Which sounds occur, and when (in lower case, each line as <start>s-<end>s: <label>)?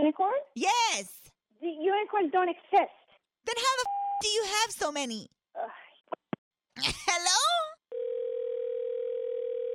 0.0s-7.8s: conversation
3.8s-4.2s: beep
6.7s-7.1s: human voice
7.0s-7.8s: female speech
7.9s-9.7s: dial tone